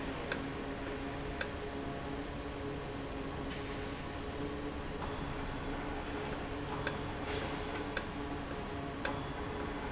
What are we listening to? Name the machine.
valve